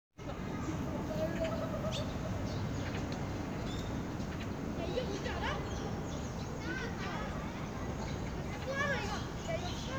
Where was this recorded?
in a park